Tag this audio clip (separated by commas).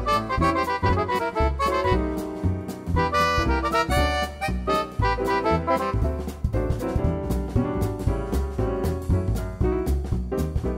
Music